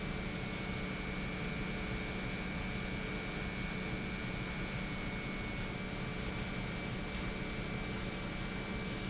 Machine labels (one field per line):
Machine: pump